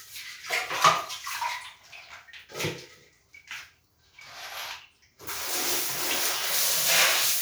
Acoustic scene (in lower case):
restroom